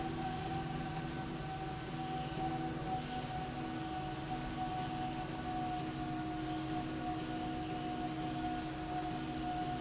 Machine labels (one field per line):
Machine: slide rail